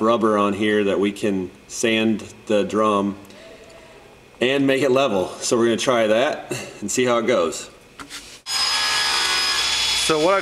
A man speaking with people speaking in the distance followed by loud humming and vibrations